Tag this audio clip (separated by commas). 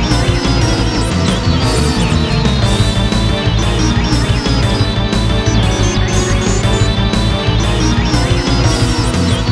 Soundtrack music, Music